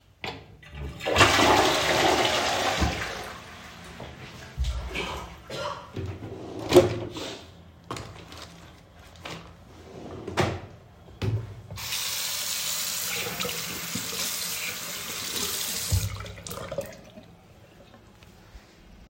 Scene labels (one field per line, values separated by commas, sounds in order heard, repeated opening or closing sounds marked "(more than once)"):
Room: lavatory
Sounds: toilet flushing, footsteps, wardrobe or drawer (more than once), running water